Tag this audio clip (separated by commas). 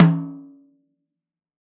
Musical instrument, Music, Percussion, Snare drum, Drum